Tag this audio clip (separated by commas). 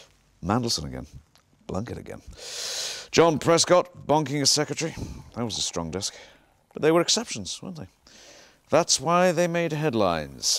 Speech